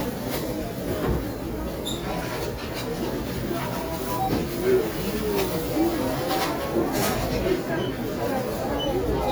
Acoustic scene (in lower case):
crowded indoor space